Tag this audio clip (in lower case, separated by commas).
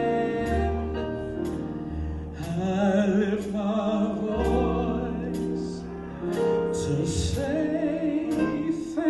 music, male singing